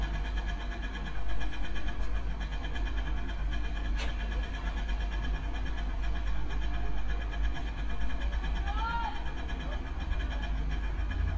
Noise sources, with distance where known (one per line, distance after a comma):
unidentified impact machinery